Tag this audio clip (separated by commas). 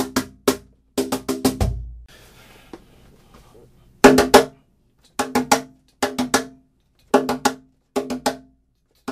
Music